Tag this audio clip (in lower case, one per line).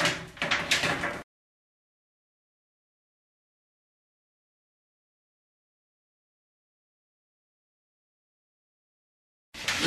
sliding door